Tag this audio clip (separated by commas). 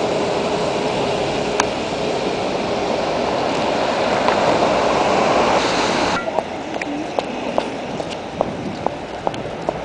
Speech, Vehicle, roadway noise